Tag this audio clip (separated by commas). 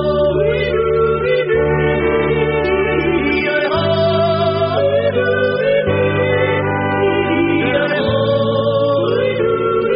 yodelling